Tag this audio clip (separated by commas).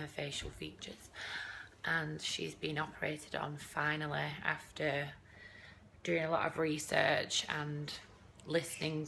Speech